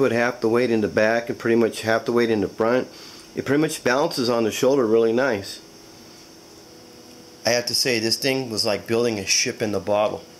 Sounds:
speech

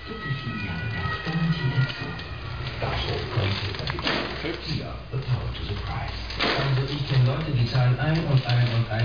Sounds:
speech, vehicle, bicycle

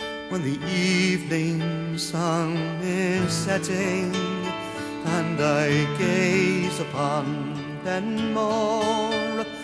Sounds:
music

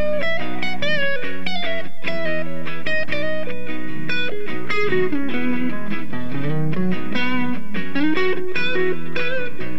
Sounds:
electric guitar, music, guitar, musical instrument, playing electric guitar, plucked string instrument

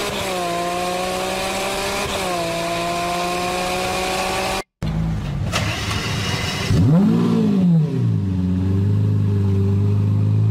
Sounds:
car passing by

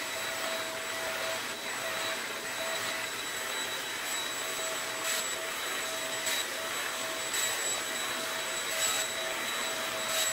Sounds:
vacuum cleaner cleaning floors

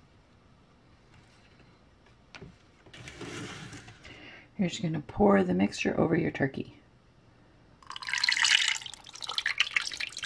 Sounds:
inside a small room, speech

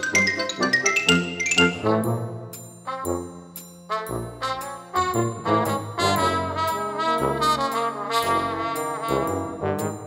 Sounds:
trombone, trumpet, brass instrument

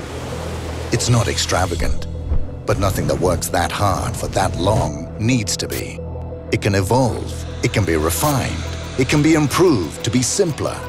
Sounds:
speech, music

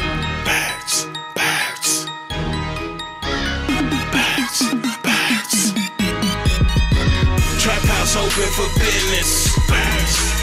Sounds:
exciting music, music

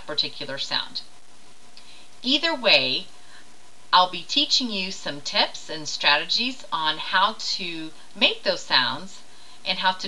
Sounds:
speech

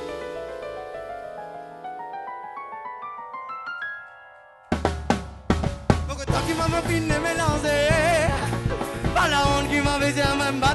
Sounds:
drum kit, bass drum, rimshot, snare drum, drum, percussion

